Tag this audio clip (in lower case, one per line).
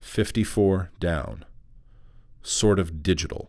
man speaking
human voice
speech